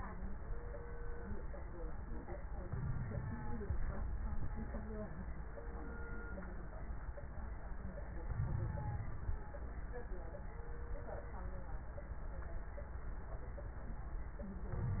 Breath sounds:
2.68-3.61 s: inhalation
2.68-3.61 s: crackles
8.30-9.42 s: inhalation
8.30-9.42 s: crackles
14.71-15.00 s: inhalation
14.71-15.00 s: crackles

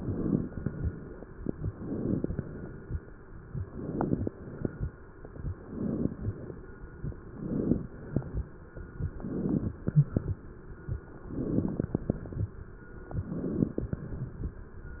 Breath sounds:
0.00-0.44 s: inhalation
0.49-1.24 s: exhalation
1.69-2.43 s: inhalation
2.41-2.96 s: exhalation
3.60-4.35 s: inhalation
4.37-4.91 s: exhalation
5.56-6.17 s: inhalation
6.19-6.74 s: exhalation
7.27-7.88 s: inhalation
7.91-8.46 s: exhalation
9.12-9.73 s: inhalation
9.81-10.36 s: exhalation
11.27-11.97 s: inhalation
12.01-12.56 s: exhalation
13.19-13.89 s: inhalation
13.89-14.44 s: exhalation

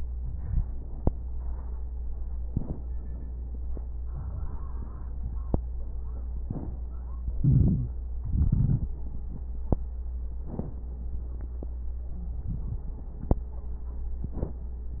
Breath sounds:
0.00-2.00 s: crackles
0.00-2.03 s: inhalation
2.03-4.07 s: exhalation
2.03-4.07 s: crackles
4.10-6.36 s: inhalation
4.10-6.36 s: crackles
6.38-8.16 s: exhalation
7.39-7.91 s: wheeze
8.20-10.37 s: inhalation
8.20-10.37 s: crackles
10.39-12.11 s: exhalation
10.39-12.11 s: crackles
12.14-13.43 s: inhalation
12.14-13.43 s: crackles
13.46-15.00 s: exhalation
13.46-15.00 s: crackles

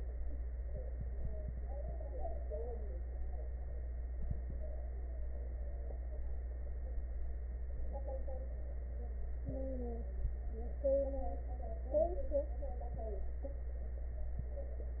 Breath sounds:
9.46-10.09 s: wheeze

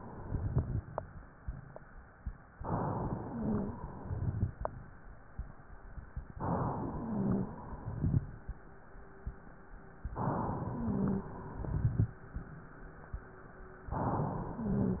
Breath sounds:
2.52-3.94 s: inhalation
3.14-3.68 s: wheeze
3.96-4.56 s: exhalation
4.00-4.54 s: crackles
6.31-7.53 s: inhalation
6.91-7.49 s: wheeze
7.55-8.31 s: exhalation
7.77-8.31 s: crackles
10.09-11.31 s: inhalation
10.71-11.29 s: wheeze
11.43-12.17 s: exhalation
11.60-12.13 s: crackles
13.86-15.00 s: inhalation
14.54-15.00 s: wheeze

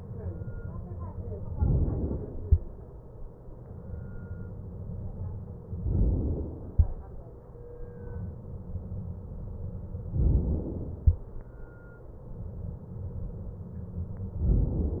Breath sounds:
1.50-2.45 s: inhalation
5.86-6.72 s: inhalation
10.16-11.02 s: inhalation

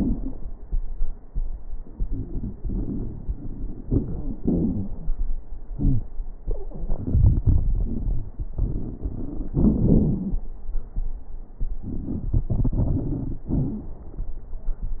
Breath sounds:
5.71-6.02 s: wheeze

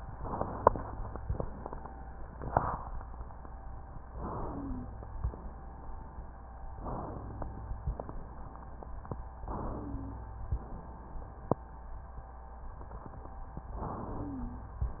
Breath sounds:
0.00-1.14 s: inhalation
4.14-5.06 s: inhalation
4.24-4.84 s: wheeze
6.78-7.80 s: inhalation
9.50-10.52 s: inhalation
9.58-10.18 s: wheeze
13.72-14.74 s: inhalation
14.08-14.68 s: wheeze

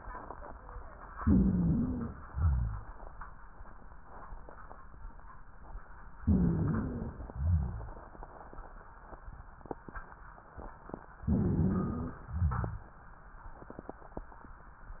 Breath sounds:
1.17-2.13 s: inhalation
1.17-2.13 s: wheeze
2.27-2.83 s: exhalation
2.27-2.83 s: rhonchi
6.22-7.15 s: wheeze
6.22-7.27 s: inhalation
7.27-7.97 s: exhalation
7.27-7.97 s: rhonchi
11.24-12.21 s: inhalation
11.24-12.21 s: wheeze
12.23-12.93 s: exhalation
12.23-12.93 s: rhonchi

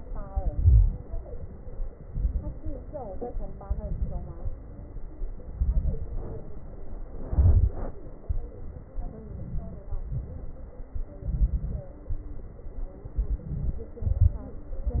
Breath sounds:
0.26-1.00 s: inhalation
0.26-1.00 s: crackles
1.08-1.90 s: exhalation
2.05-2.79 s: inhalation
2.05-2.79 s: crackles
2.79-3.61 s: exhalation
3.65-4.39 s: inhalation
3.65-4.39 s: crackles
4.43-5.45 s: exhalation
5.57-6.10 s: inhalation
5.57-6.10 s: crackles
6.21-7.24 s: exhalation
7.26-7.94 s: inhalation
7.26-7.94 s: crackles
8.23-8.91 s: exhalation
9.03-9.86 s: inhalation
9.03-9.86 s: crackles
9.92-10.94 s: exhalation
9.92-10.94 s: crackles
11.15-11.91 s: inhalation
11.15-11.91 s: crackles
12.09-13.03 s: exhalation
13.11-13.83 s: inhalation
13.11-13.83 s: crackles
14.06-14.54 s: exhalation
14.06-14.54 s: crackles

